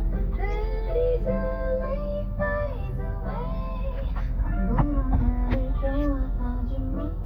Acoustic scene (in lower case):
car